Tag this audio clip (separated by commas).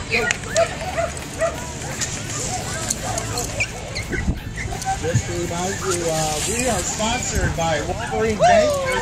Yip, Speech, Music